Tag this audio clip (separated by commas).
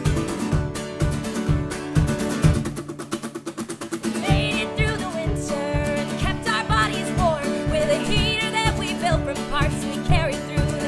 Acoustic guitar, Musical instrument, Music, Plucked string instrument, Guitar